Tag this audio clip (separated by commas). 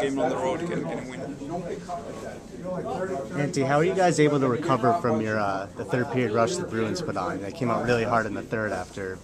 Speech